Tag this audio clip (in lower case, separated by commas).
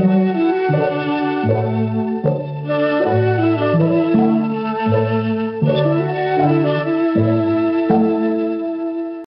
music